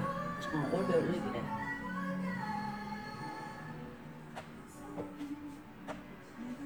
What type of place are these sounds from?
cafe